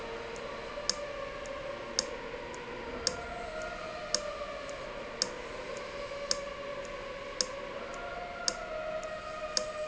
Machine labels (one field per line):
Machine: valve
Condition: abnormal